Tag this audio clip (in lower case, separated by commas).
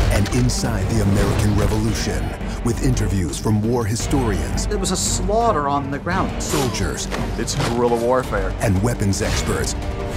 speech, music